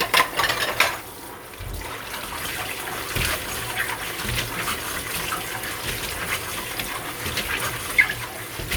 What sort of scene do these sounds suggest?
kitchen